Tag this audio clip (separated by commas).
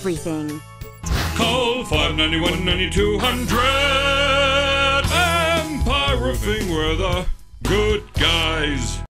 Speech, Music